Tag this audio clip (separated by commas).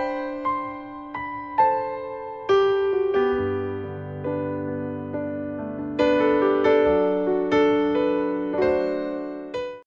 Music